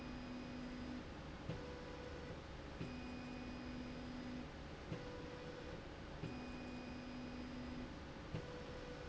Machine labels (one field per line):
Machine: slide rail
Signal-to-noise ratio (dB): 6 dB